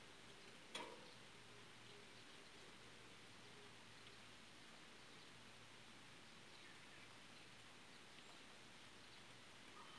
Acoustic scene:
park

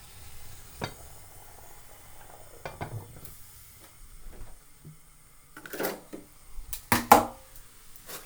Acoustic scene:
kitchen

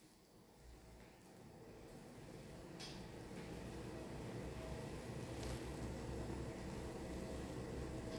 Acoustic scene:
elevator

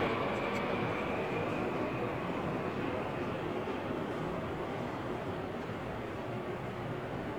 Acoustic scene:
subway station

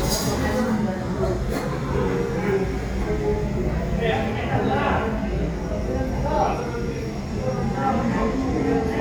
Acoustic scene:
crowded indoor space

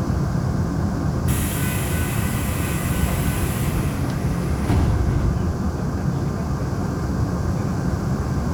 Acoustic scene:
subway train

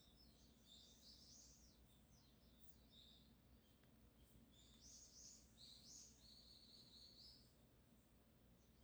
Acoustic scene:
park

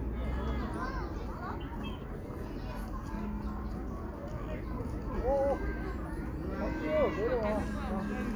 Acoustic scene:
park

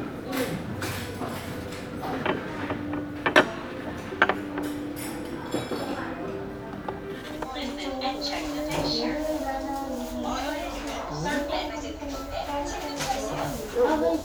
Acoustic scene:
crowded indoor space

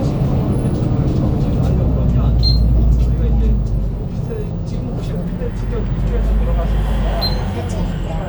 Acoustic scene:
bus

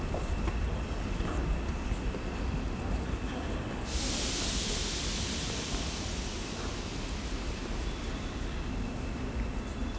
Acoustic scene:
subway station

